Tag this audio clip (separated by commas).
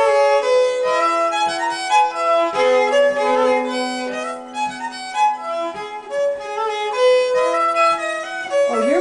Speech, Violin, Music, Musical instrument